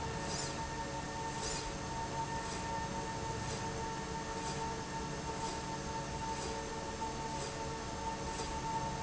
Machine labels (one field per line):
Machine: slide rail